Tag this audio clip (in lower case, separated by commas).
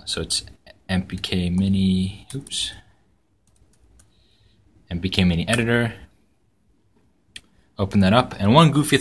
speech, computer keyboard, inside a small room